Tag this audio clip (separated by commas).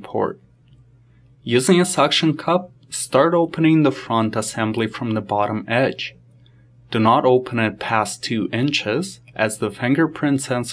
Speech